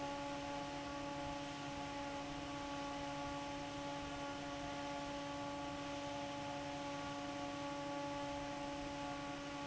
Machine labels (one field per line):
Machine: fan